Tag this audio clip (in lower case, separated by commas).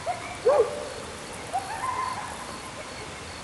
bird, animal, wild animals